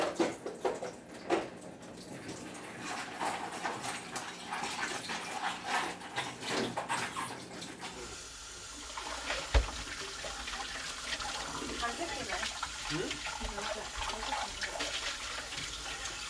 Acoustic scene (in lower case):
kitchen